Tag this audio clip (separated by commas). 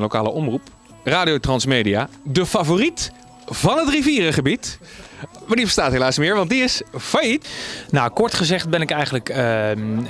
Speech